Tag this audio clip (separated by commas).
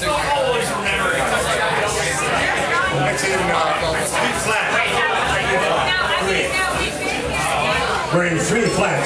Speech